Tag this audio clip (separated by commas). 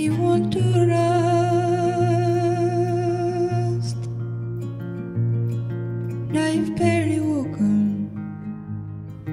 Music